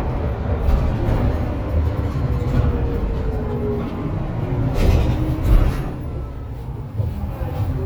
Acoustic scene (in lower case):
bus